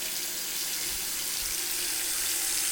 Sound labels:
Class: water tap